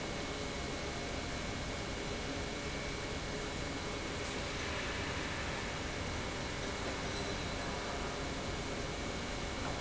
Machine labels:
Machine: pump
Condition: normal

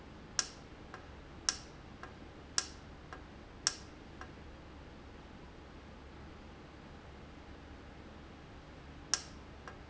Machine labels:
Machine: valve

